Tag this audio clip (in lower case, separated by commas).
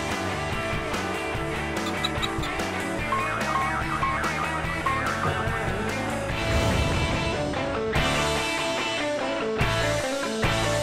music